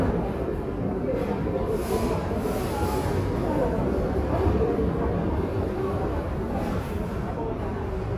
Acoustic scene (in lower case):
crowded indoor space